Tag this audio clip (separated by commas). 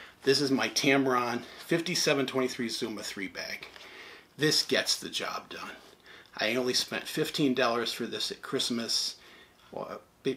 Speech